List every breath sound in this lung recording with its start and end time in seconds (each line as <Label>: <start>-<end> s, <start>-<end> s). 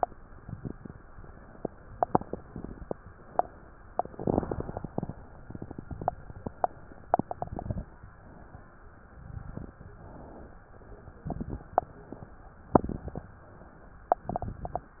Inhalation: 9.51-10.66 s